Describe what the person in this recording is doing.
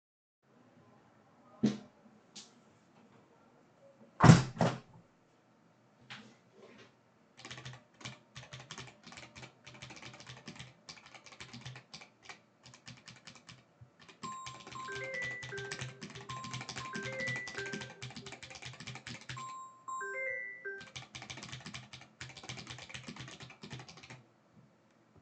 I opened my window and started typing on a keyboard. While I was typing someone called my phone, I stopped typing and declined the call, then I continued typing.